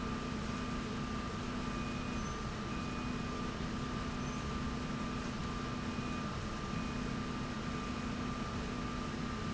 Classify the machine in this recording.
slide rail